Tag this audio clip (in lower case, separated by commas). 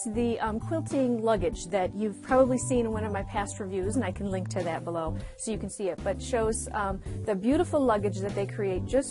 music, speech